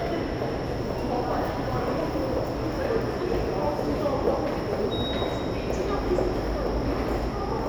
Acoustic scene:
subway station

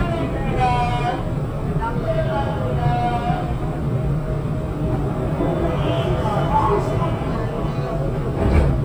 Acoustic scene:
subway train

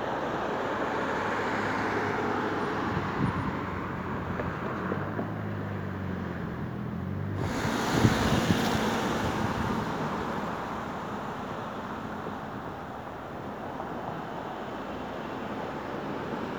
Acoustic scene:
street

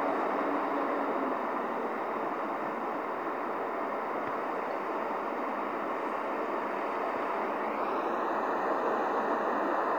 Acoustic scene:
street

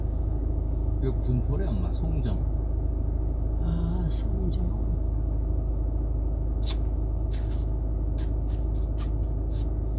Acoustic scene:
car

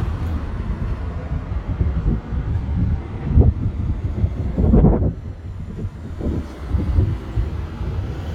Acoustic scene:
residential area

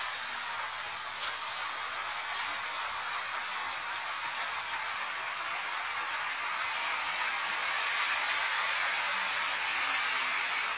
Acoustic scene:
street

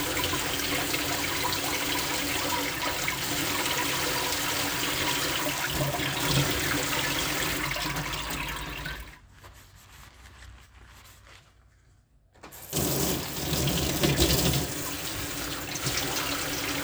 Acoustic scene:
kitchen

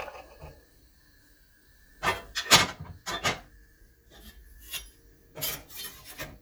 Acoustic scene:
kitchen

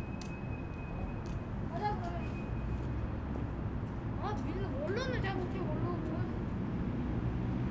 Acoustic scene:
residential area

